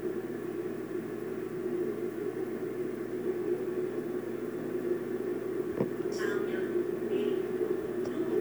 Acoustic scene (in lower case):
subway train